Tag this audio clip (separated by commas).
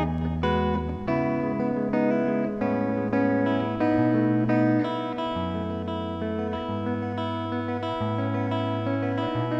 Plucked string instrument, Electric guitar, Music, Guitar, Musical instrument